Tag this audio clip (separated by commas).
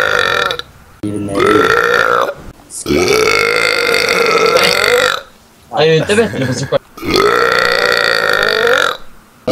Speech, Burping